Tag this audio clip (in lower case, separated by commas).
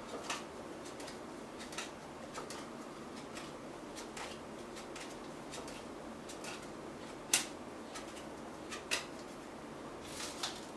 inside a small room